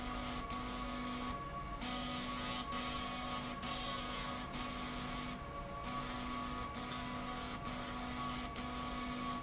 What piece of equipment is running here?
slide rail